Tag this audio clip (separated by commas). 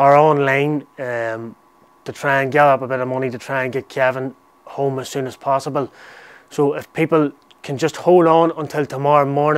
Speech